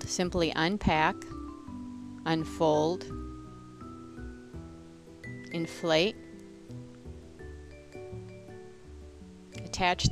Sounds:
music
speech

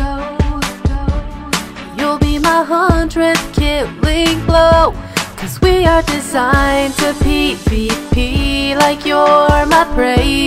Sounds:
music

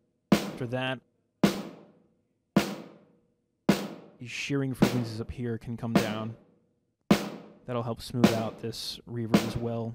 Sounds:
rimshot
percussion
drum
snare drum

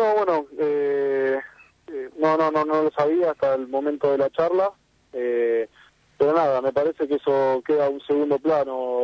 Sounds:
radio
speech

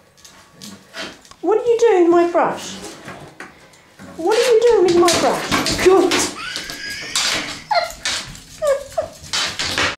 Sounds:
speech

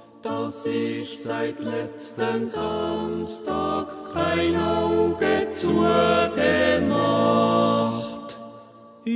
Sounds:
singing
music

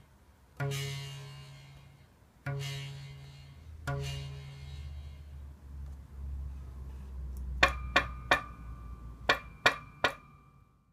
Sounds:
plucked string instrument
musical instrument
guitar
music

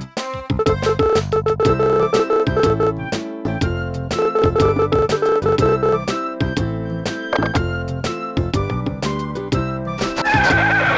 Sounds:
music

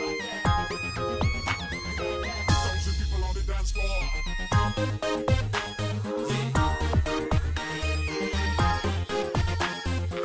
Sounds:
music

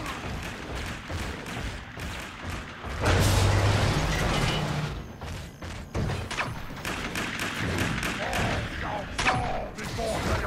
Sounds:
speech

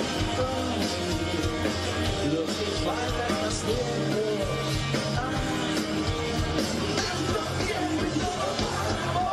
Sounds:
exciting music
disco
music

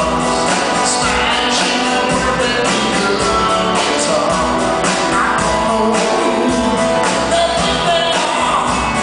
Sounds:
electric guitar
musical instrument
plucked string instrument
guitar
music

